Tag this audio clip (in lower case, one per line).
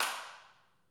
hands
clapping